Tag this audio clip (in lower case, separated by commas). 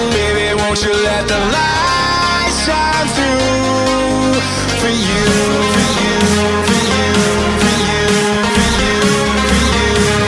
exciting music, music